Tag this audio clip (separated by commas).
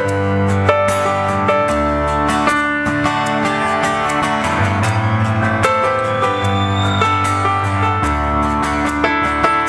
Music